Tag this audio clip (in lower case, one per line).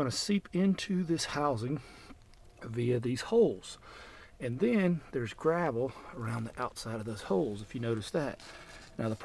speech